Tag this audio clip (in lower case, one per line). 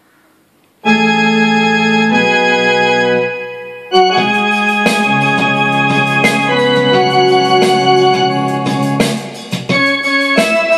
piano
music
electronic organ
keyboard (musical)
musical instrument
playing electronic organ